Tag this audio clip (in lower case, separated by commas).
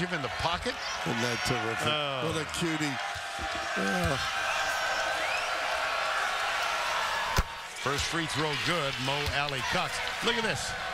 basketball bounce